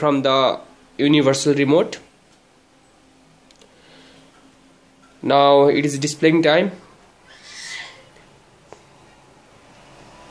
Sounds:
Speech

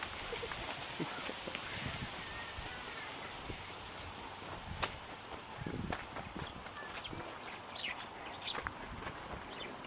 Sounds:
Animal, Goat

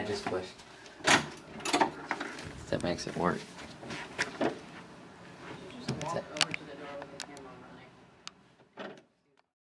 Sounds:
Speech

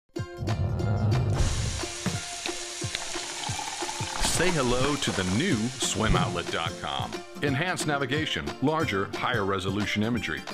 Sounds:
Sizzle

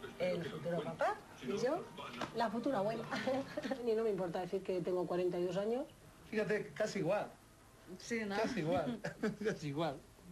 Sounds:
Speech

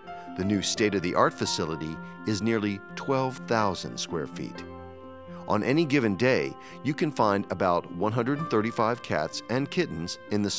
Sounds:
Speech, Music

